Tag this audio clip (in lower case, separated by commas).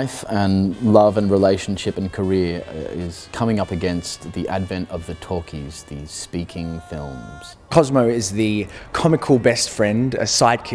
speech, music